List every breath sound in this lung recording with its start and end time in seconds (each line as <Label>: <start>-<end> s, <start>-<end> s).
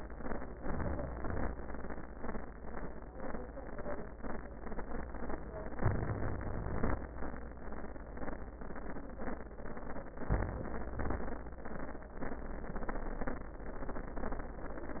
Inhalation: 0.51-1.16 s, 5.78-6.68 s, 10.23-10.96 s
Exhalation: 1.13-1.78 s, 6.68-7.16 s, 10.98-11.51 s